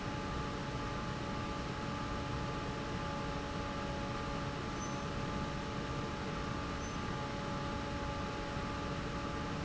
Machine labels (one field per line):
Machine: fan